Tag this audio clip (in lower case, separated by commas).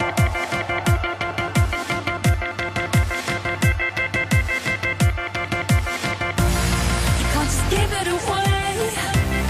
music